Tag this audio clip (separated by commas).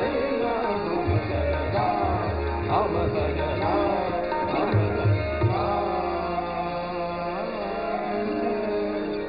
Classical music, Music, Carnatic music